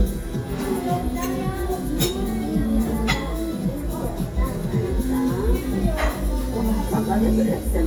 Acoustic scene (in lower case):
restaurant